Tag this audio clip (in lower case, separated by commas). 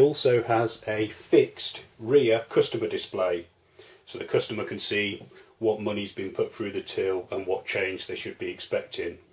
speech